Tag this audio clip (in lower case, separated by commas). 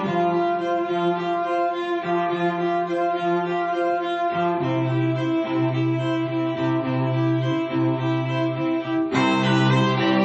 cello, bowed string instrument, double bass, fiddle